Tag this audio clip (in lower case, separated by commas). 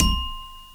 xylophone, musical instrument, percussion, mallet percussion, music